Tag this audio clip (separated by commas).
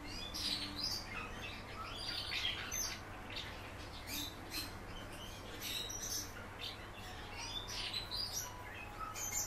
barn swallow calling